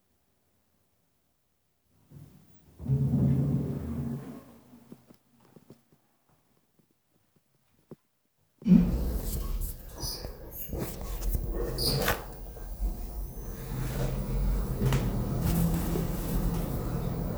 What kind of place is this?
elevator